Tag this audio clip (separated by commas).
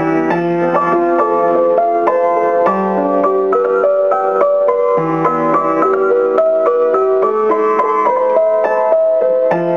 Music